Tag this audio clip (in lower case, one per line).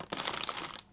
crackle